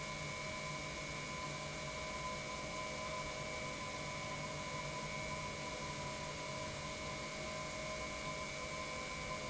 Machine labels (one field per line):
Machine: pump